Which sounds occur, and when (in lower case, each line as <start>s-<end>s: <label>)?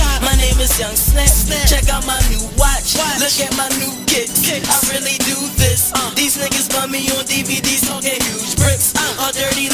0.0s-9.7s: music
0.0s-9.7s: rapping